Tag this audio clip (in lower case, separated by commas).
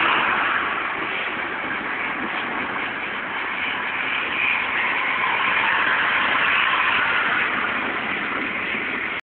vehicle